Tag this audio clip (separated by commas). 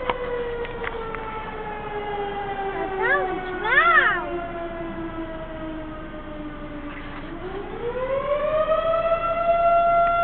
Speech, Siren, Civil defense siren